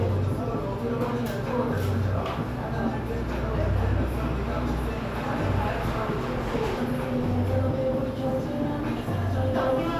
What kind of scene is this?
cafe